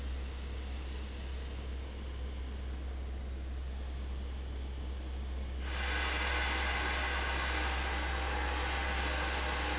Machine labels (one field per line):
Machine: fan